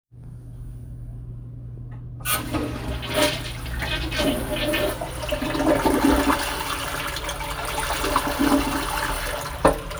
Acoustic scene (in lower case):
restroom